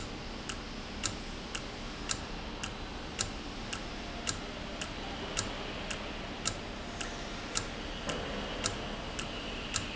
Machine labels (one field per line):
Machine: valve